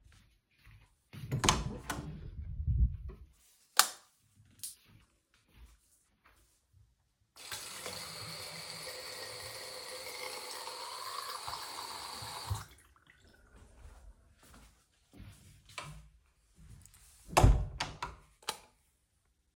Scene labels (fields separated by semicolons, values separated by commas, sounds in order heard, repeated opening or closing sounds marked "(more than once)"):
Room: hallway, bathroom; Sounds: footsteps, door (more than once), light switch, running water